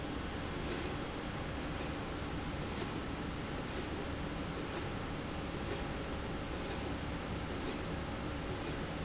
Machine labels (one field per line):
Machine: slide rail